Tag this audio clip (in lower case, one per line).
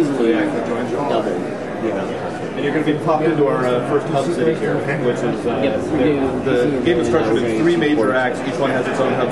speech